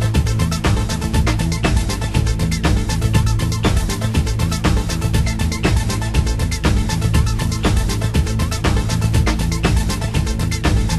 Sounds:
techno, music

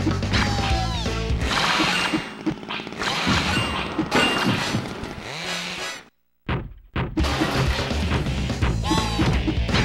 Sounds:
music

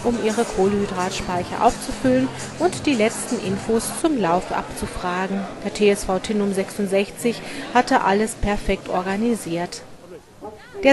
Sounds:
music, speech, inside a public space

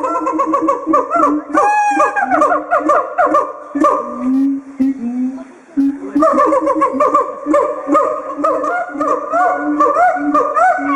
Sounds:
gibbon howling

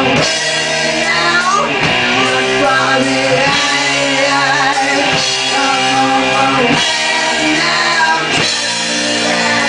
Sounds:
music

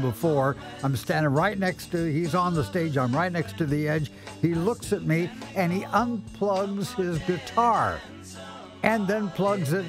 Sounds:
speech, music

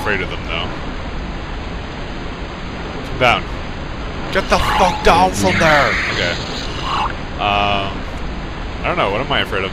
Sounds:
speech

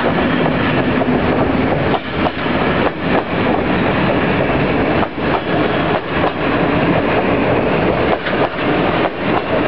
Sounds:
vehicle, train

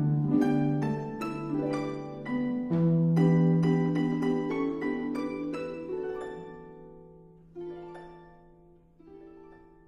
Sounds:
musical instrument, plucked string instrument, music, harp, inside a large room or hall, playing harp

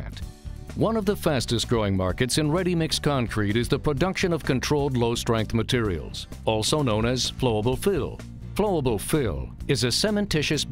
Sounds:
music, speech

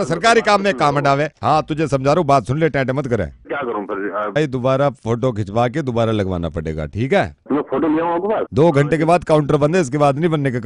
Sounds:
speech

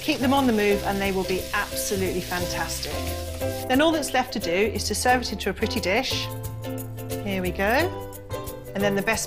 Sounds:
speech, music

